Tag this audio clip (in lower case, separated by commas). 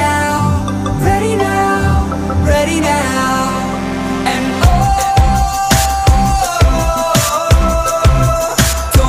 music